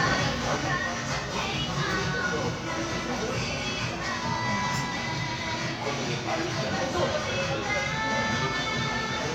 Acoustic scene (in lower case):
crowded indoor space